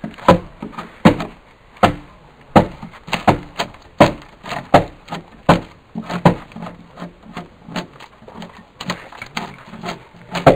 Hammering is occurring and a ripping, sawing sound is present